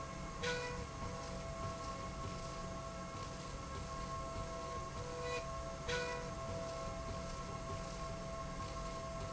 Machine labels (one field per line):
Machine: slide rail